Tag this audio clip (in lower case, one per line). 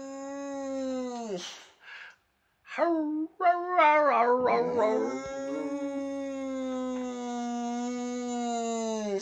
dog howling